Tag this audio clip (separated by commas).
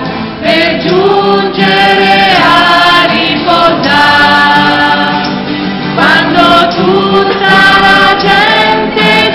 Music